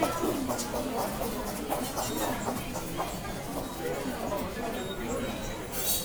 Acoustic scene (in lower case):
subway station